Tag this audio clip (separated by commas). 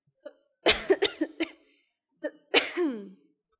Respiratory sounds, Cough